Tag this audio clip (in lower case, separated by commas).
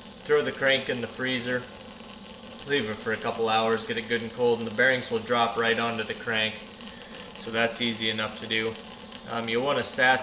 speech